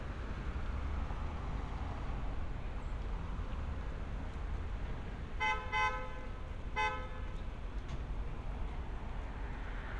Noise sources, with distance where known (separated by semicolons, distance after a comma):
car horn, near